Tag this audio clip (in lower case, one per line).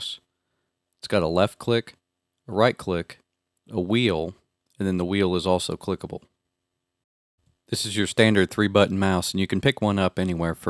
speech